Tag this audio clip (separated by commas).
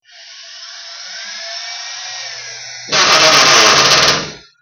Power tool, Tools, Drill